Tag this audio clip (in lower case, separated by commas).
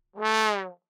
musical instrument, brass instrument, music